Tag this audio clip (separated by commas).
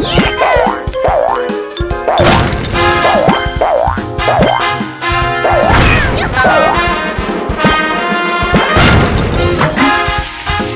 Music